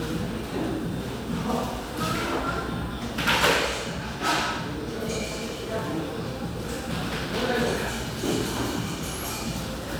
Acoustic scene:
cafe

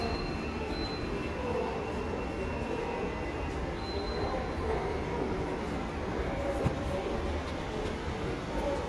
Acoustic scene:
subway station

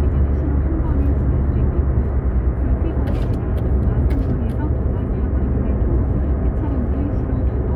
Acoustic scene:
car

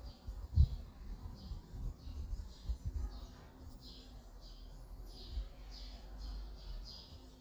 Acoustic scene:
park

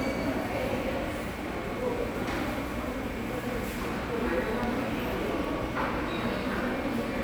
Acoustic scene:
subway station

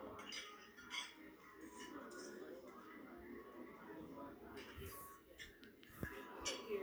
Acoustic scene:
restaurant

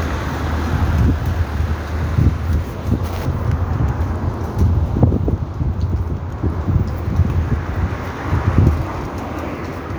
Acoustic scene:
street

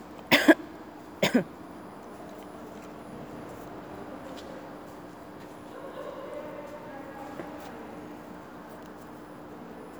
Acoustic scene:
subway station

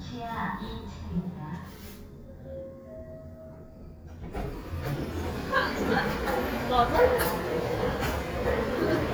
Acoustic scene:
elevator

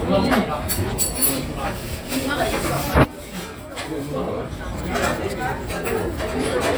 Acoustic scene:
restaurant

